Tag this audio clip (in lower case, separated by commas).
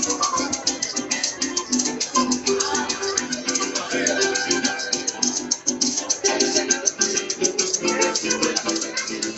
maraca, music